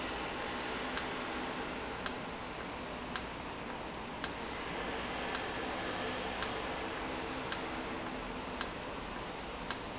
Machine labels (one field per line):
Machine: valve